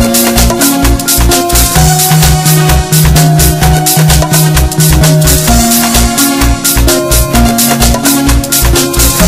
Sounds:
music

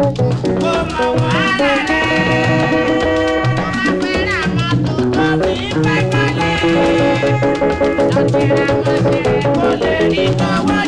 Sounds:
music
music of africa

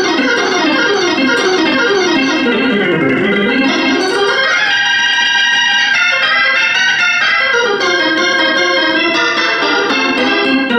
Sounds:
playing hammond organ

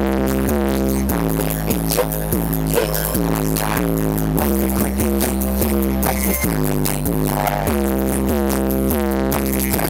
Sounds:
music

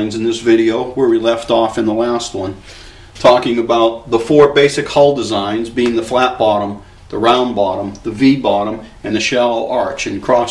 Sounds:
speech

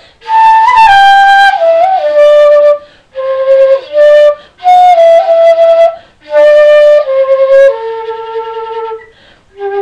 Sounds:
music

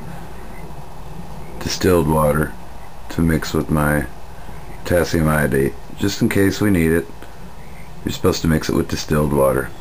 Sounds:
speech

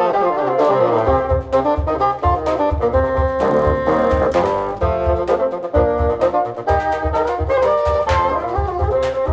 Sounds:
playing bassoon

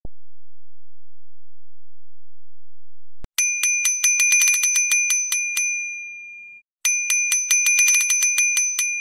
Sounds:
bicycle bell

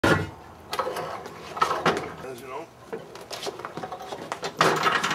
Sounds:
speech

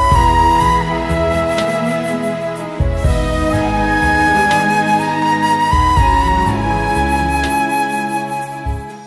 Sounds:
music

